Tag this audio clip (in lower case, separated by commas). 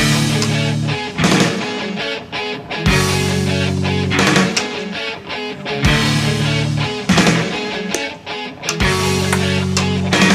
progressive rock, grunge